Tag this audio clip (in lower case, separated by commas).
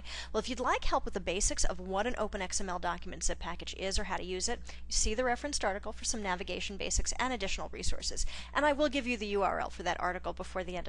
speech